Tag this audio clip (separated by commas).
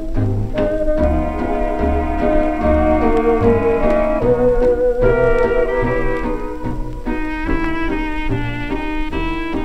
Orchestra, Music